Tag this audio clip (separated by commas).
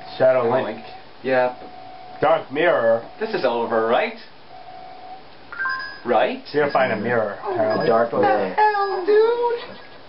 Speech